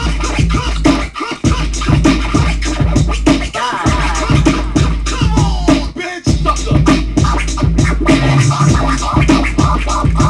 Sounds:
Scratching (performance technique), Music

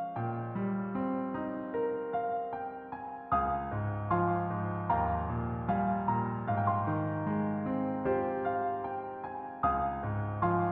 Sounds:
Music

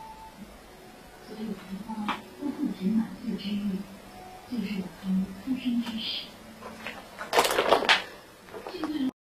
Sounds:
Speech

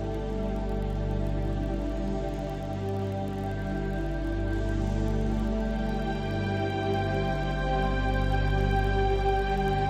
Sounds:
Music, New-age music

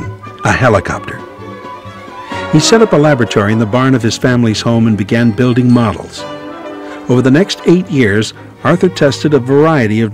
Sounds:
Speech, Music

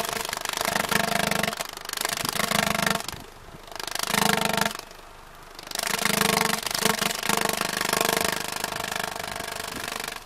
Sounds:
Engine

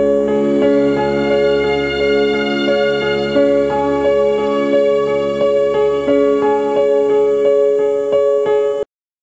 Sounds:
Tender music, Music

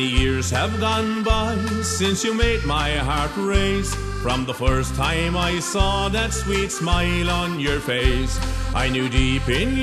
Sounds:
Accordion, Music

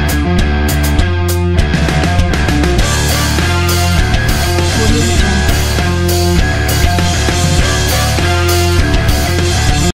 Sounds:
Music

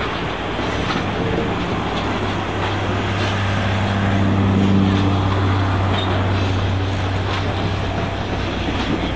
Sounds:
outside, urban or man-made, Train, Vehicle, Rail transport, Railroad car

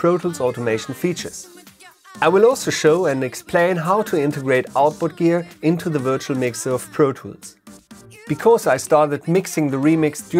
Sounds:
Speech, Music

